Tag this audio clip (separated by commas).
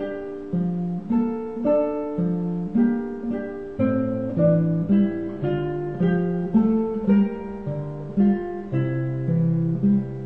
Plucked string instrument, Guitar, Bass guitar, Music, Musical instrument, Strum, Acoustic guitar